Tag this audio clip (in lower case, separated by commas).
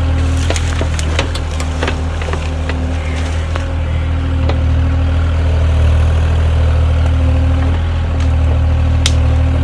tractor digging